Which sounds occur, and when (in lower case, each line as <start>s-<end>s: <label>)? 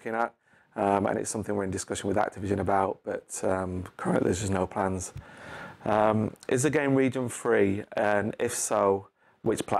0.0s-0.3s: man speaking
0.3s-0.7s: breathing
0.8s-3.0s: man speaking
3.1s-3.2s: man speaking
3.3s-3.9s: man speaking
4.0s-5.2s: man speaking
5.1s-5.3s: tick
5.2s-5.8s: breathing
5.9s-6.3s: man speaking
6.4s-6.5s: tick
6.5s-7.9s: man speaking
8.0s-9.1s: man speaking
9.2s-9.4s: breathing
9.4s-9.7s: man speaking